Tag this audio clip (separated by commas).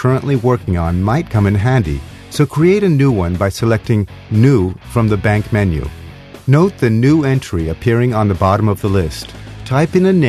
Acoustic guitar, Strum, Plucked string instrument, Music, Guitar, Speech, Musical instrument